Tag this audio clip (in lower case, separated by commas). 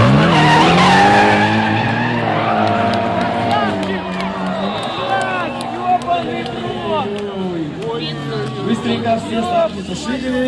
car passing by